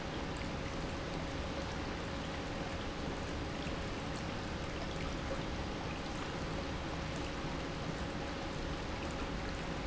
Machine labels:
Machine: pump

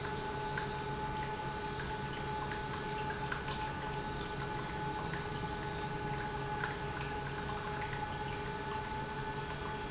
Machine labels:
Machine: pump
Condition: normal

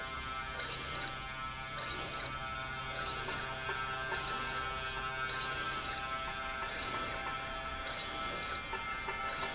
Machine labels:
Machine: slide rail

